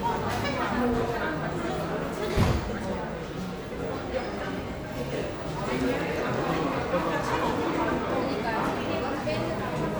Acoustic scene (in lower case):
crowded indoor space